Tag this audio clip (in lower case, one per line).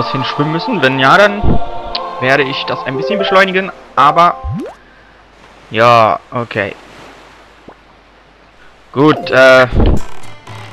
speech
music